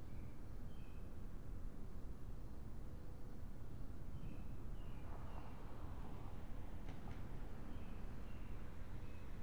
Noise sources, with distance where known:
background noise

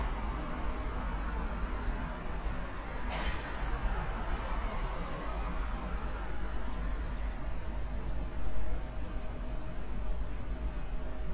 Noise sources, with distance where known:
unidentified impact machinery

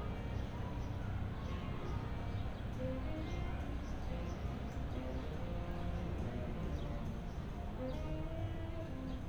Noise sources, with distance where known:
music from a fixed source

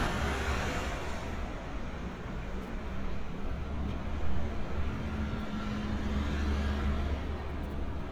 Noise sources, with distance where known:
medium-sounding engine, near

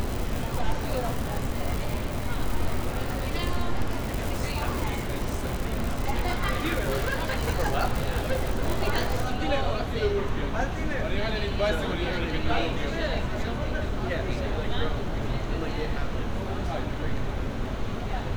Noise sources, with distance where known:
person or small group talking, near

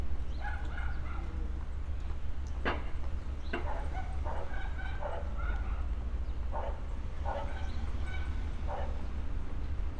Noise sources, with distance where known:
dog barking or whining, far

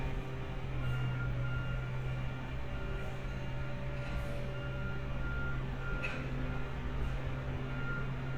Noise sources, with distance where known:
reverse beeper, near

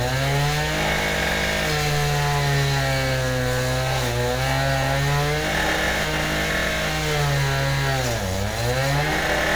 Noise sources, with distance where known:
chainsaw, near

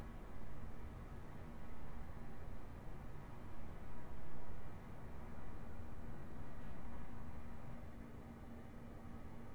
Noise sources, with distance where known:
background noise

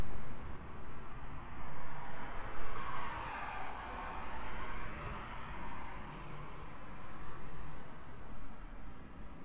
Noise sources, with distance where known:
engine of unclear size, far

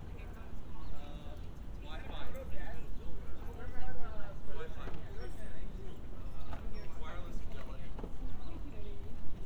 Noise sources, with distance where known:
unidentified human voice

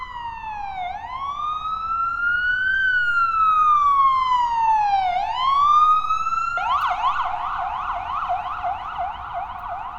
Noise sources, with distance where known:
siren, near

